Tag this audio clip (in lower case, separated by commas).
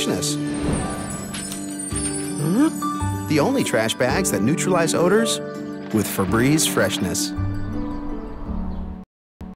music, speech